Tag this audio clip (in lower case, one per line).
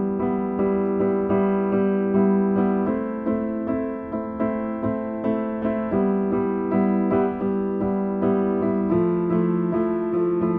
electric piano